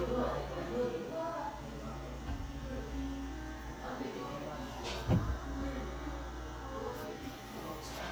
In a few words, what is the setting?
crowded indoor space